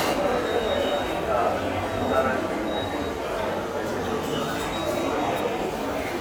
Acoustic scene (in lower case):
subway station